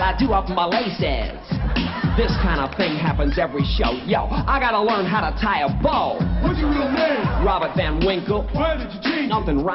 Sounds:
dance music, music

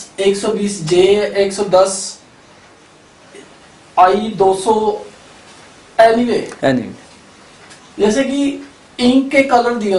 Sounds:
speech

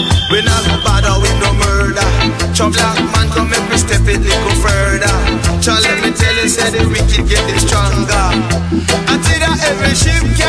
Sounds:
music, music of africa

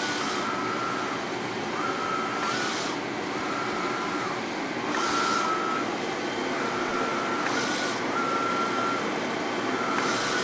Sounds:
printer printing, printer

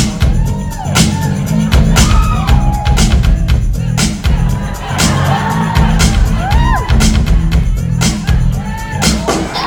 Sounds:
music, dance music

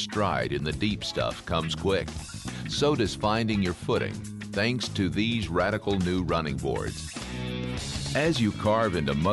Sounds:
music, speech

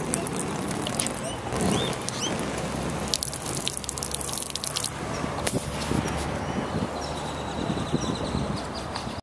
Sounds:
gurgling

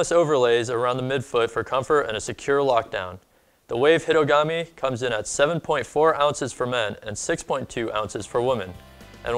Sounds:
speech

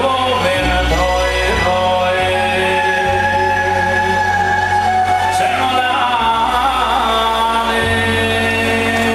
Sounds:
singing

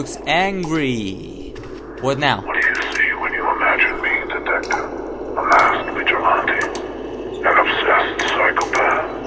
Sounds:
speech

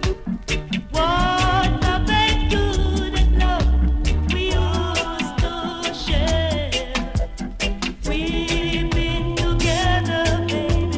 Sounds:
rhythm and blues, music, blues

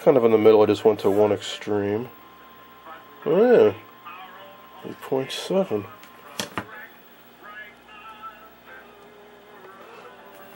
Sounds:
inside a small room, speech

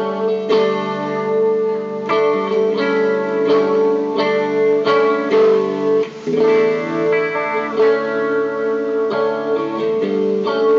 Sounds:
musical instrument, music

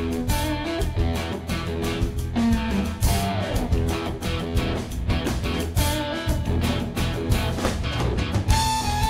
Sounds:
plucked string instrument, musical instrument, guitar, music

